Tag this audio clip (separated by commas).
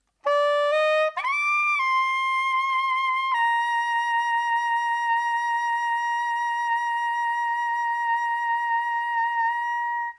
Musical instrument, woodwind instrument, Music